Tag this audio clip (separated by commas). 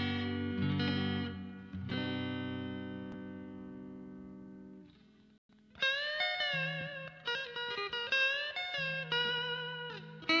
Guitar, Music, Plucked string instrument, Musical instrument